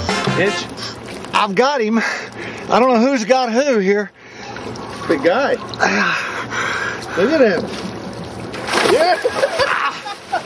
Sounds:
music
speech

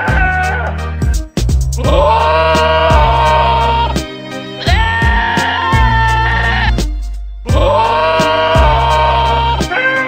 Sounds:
bleat
music
sheep

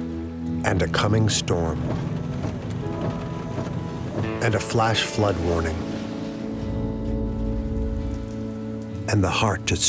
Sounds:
music
speech

